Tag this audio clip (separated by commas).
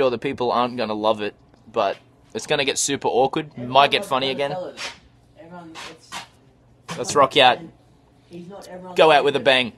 Speech